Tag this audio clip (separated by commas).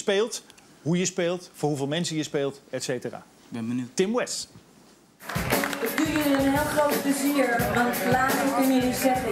Music, Speech